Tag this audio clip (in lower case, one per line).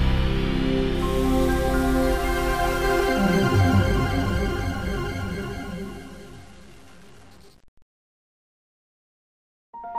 music
sizzle